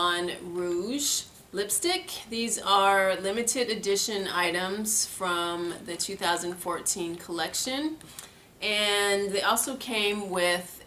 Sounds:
speech

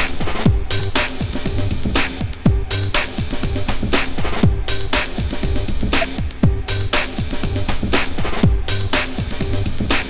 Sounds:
music

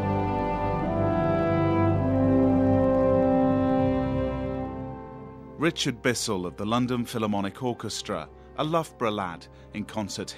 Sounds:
music, speech, theme music

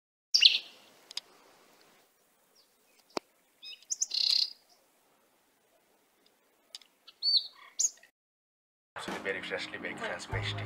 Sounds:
bird vocalization, bird, chirp

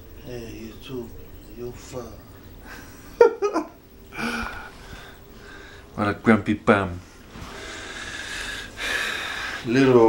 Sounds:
speech

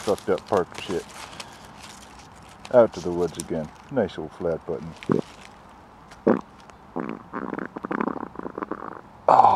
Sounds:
speech, stomach rumble

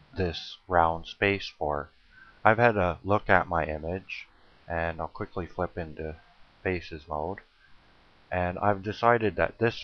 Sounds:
speech

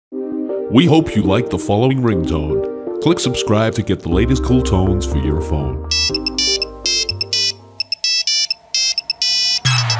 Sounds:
ringtone, music, speech

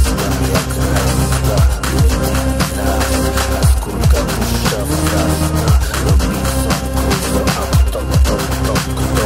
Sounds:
techno, music, electronic music

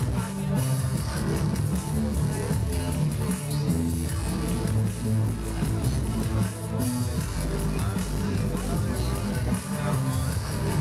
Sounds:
music

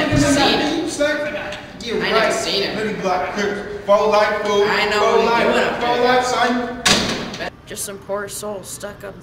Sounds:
speech

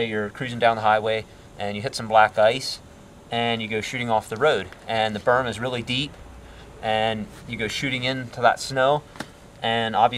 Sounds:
speech

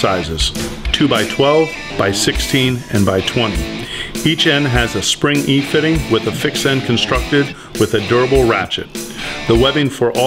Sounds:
speech, music

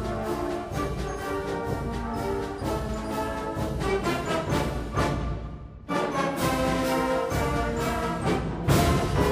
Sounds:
music

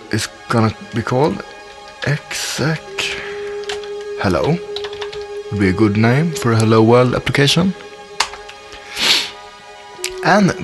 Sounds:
speech, music

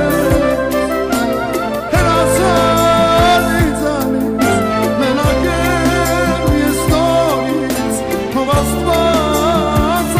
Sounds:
clarinet, music

